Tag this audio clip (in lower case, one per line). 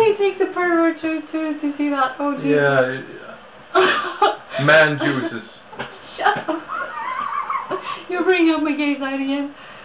speech